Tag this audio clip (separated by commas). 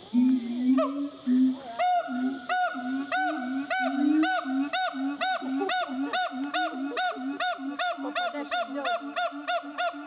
gibbon howling